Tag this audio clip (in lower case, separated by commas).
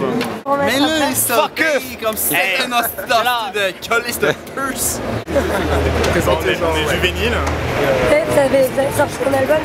speech